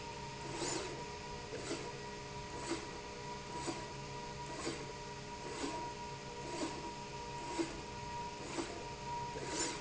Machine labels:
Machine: slide rail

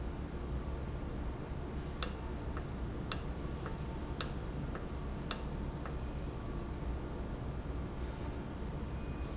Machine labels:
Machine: valve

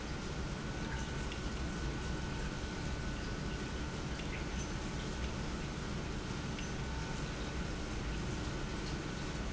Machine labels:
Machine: pump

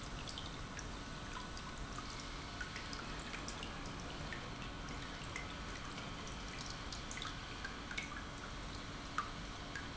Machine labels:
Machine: pump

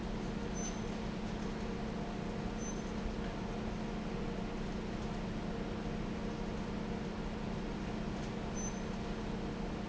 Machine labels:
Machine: fan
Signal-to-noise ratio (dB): -6 dB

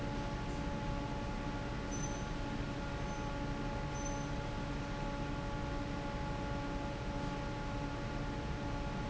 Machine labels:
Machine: fan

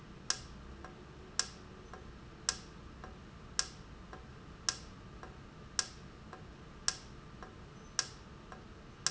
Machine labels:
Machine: valve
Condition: normal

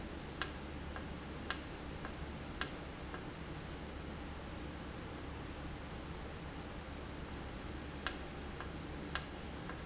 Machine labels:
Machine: valve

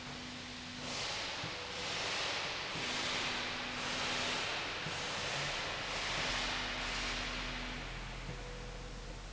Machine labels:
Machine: slide rail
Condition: normal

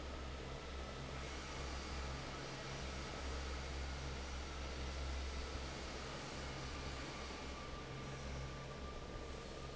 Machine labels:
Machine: fan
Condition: normal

